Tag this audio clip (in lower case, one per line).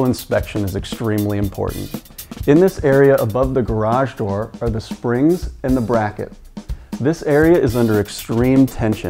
speech
music